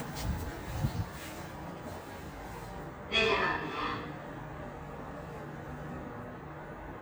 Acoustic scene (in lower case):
elevator